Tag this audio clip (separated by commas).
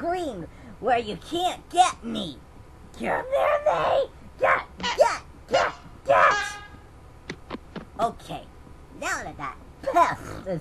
Speech